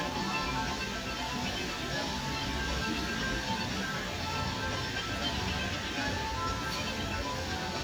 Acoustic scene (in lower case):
park